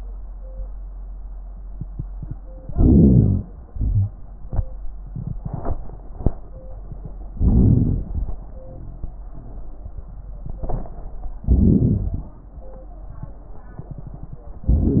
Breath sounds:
2.74-3.66 s: inhalation
2.74-3.66 s: wheeze
3.72-4.11 s: exhalation
7.39-8.44 s: inhalation
7.39-8.44 s: crackles
11.47-12.32 s: inhalation
11.47-12.32 s: crackles
14.70-15.00 s: inhalation
14.70-15.00 s: crackles

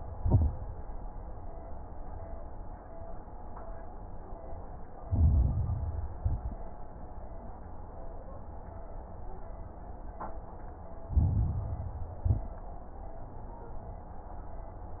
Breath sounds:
0.00-0.57 s: exhalation
0.00-0.57 s: crackles
5.07-6.13 s: inhalation
5.07-6.13 s: crackles
6.16-6.71 s: exhalation
6.16-6.71 s: crackles
11.10-12.16 s: inhalation
11.10-12.16 s: crackles
12.20-12.63 s: exhalation
12.20-12.63 s: crackles

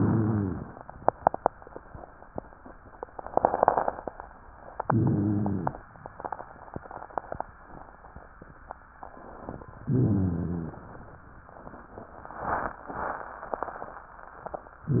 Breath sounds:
4.83-5.79 s: inhalation
4.85-5.78 s: rhonchi
9.82-10.75 s: rhonchi
9.89-10.81 s: inhalation

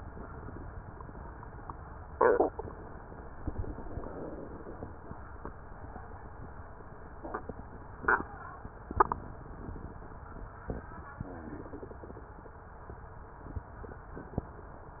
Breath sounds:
No breath sounds were labelled in this clip.

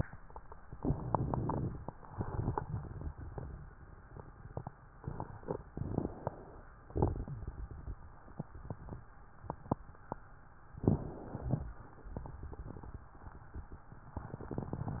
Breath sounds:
0.81-1.90 s: inhalation
0.81-1.90 s: crackles
2.02-3.67 s: exhalation
2.02-3.67 s: crackles
5.74-6.62 s: inhalation
6.87-8.01 s: exhalation
6.87-8.01 s: crackles
10.77-11.71 s: inhalation
12.13-13.05 s: exhalation
12.13-13.05 s: crackles

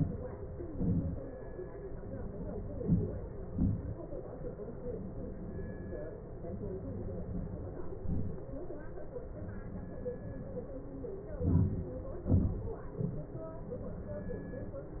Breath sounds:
2.73-3.22 s: inhalation
3.52-3.89 s: exhalation
11.46-11.95 s: inhalation
12.36-12.73 s: exhalation

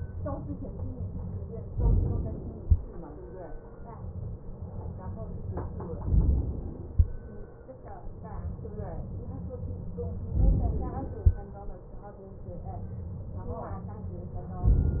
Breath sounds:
1.77-2.69 s: inhalation
6.05-6.88 s: inhalation
10.36-11.20 s: inhalation

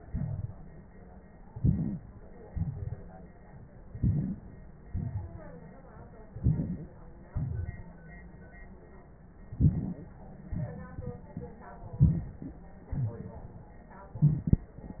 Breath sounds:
1.46-2.20 s: inhalation
2.47-3.21 s: exhalation
3.93-4.59 s: inhalation
4.90-5.64 s: exhalation
6.28-7.02 s: inhalation
7.29-7.93 s: exhalation
7.29-7.93 s: crackles
9.56-10.21 s: inhalation
11.90-12.54 s: inhalation
11.97-12.20 s: wheeze
12.90-13.89 s: exhalation

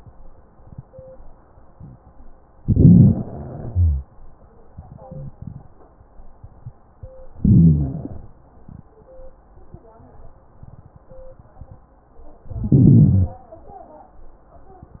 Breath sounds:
2.61-3.25 s: inhalation
3.70-4.06 s: wheeze
5.07-5.35 s: wheeze
7.39-8.27 s: inhalation
12.54-13.41 s: inhalation
12.54-13.41 s: crackles

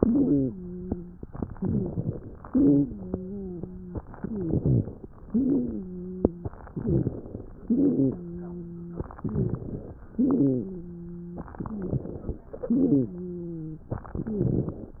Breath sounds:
0.00-1.24 s: wheeze
1.54-2.41 s: inhalation
1.55-2.37 s: crackles
2.45-3.09 s: exhalation
2.45-4.06 s: wheeze
4.14-4.95 s: inhalation
4.14-4.95 s: wheeze
5.22-5.84 s: exhalation
5.22-6.49 s: wheeze
6.74-7.61 s: inhalation
6.74-7.61 s: crackles
7.65-8.27 s: exhalation
7.65-9.05 s: wheeze
9.18-9.98 s: inhalation
9.18-9.98 s: crackles
10.13-11.52 s: exhalation
10.13-11.52 s: wheeze
11.55-12.47 s: inhalation
11.55-12.47 s: wheeze
12.65-13.23 s: exhalation
12.65-13.91 s: wheeze

